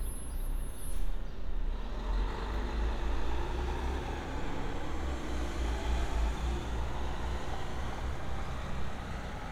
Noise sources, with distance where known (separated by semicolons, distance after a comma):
large-sounding engine